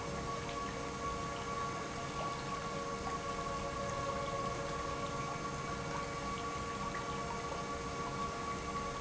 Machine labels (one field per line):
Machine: pump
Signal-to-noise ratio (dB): -6 dB